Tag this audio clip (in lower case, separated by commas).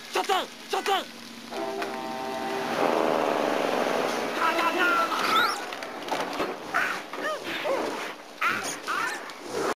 music, speech